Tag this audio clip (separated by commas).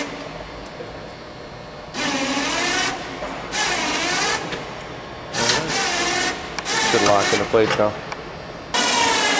Speech